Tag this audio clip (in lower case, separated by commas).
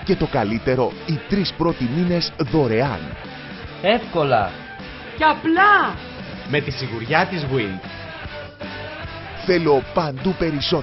speech, music